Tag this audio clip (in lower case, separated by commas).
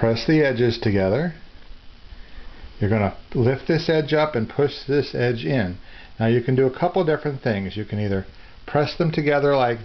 inside a small room, speech